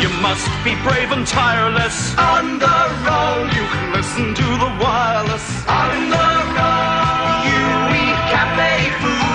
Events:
[0.00, 2.10] male singing
[0.00, 9.34] music
[2.17, 3.51] choir
[3.47, 5.68] male singing
[5.66, 9.34] choir
[7.43, 9.34] male singing

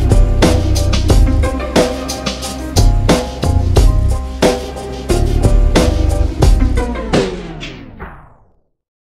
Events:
[0.00, 8.90] music

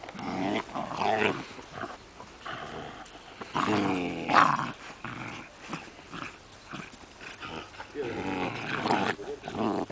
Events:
[0.00, 1.94] growling
[0.00, 9.91] background noise
[0.04, 0.12] tick
[2.16, 2.24] tick
[2.41, 6.35] growling
[6.34, 6.85] bird call
[6.67, 9.91] growling
[7.51, 7.88] bird call
[7.92, 8.49] male speech
[9.18, 9.86] male speech

